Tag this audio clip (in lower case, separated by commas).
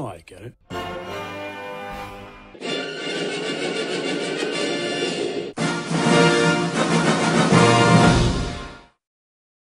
speech, television, music